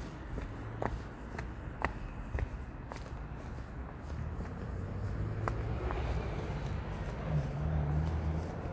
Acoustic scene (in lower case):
street